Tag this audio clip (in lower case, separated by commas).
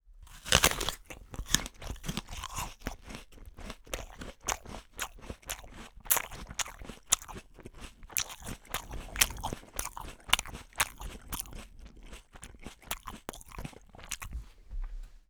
mastication